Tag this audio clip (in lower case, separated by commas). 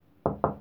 wood, home sounds, knock, door